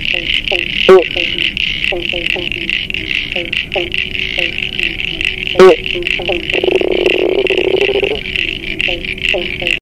A frog is making sounds outside